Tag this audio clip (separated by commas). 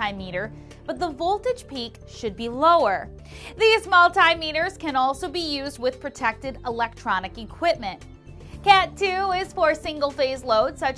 Speech, Music